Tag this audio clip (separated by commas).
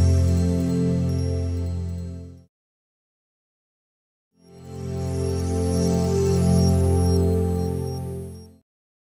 Music